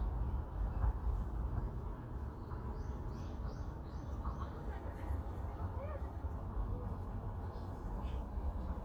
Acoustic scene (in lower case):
park